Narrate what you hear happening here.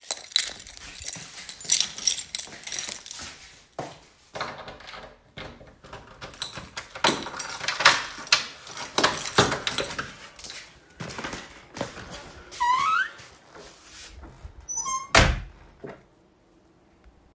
I took my keys out, unlocked the door, opened the door and closed it.